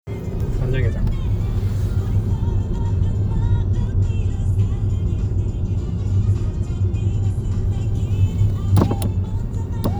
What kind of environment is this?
car